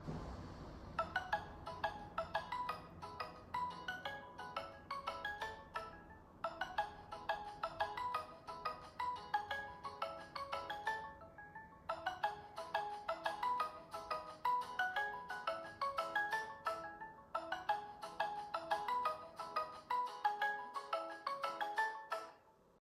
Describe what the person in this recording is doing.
I received a phone call so the phone was ringing.